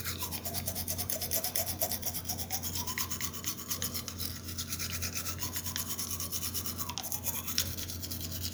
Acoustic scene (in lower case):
restroom